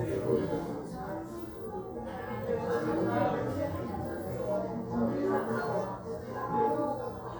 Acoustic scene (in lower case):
crowded indoor space